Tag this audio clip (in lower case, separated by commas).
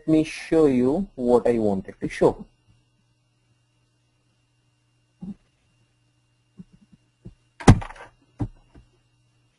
speech